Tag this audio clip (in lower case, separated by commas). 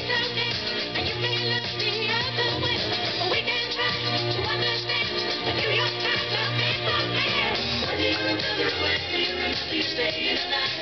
radio, music